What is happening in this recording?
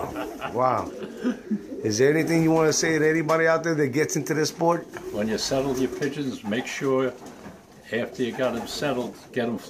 Two men speak while a kit of pigeons are cooing nearby